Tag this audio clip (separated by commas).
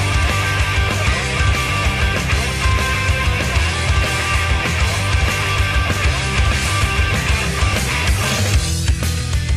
Music